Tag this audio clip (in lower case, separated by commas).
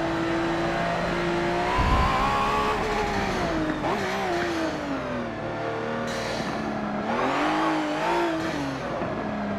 skidding